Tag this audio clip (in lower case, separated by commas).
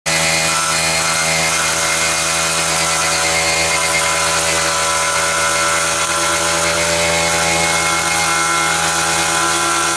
hedge trimmer running